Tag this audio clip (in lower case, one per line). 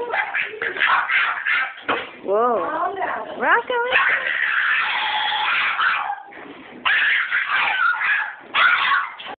speech